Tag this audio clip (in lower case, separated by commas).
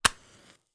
fire